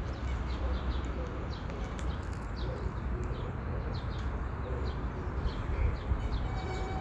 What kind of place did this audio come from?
park